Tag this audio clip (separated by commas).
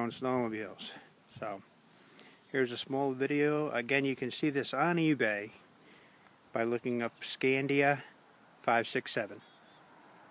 Speech